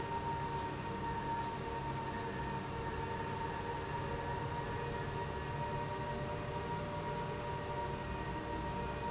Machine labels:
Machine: pump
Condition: abnormal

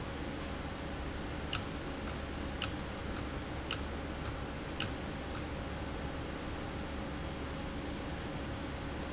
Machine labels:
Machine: valve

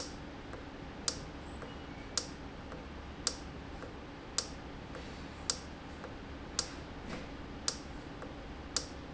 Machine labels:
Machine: valve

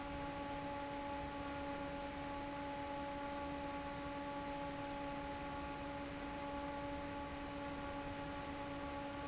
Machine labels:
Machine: fan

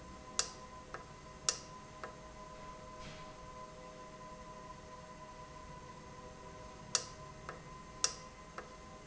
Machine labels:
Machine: valve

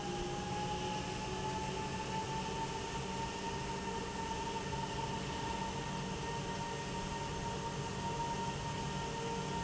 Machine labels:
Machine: pump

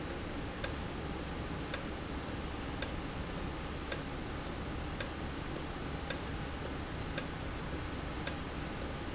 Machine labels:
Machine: valve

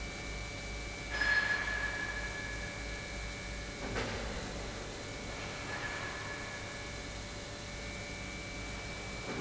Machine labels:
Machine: pump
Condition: normal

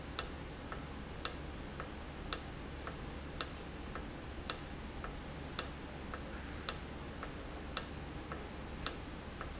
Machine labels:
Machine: valve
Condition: normal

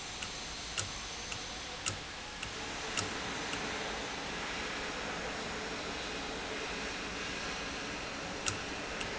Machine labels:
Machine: valve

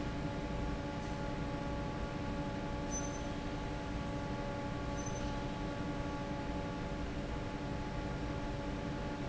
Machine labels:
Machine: fan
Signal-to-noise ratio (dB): -6 dB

